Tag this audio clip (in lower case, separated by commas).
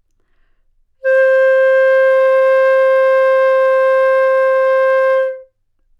musical instrument, woodwind instrument, music